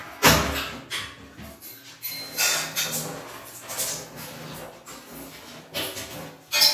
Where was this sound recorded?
in a restroom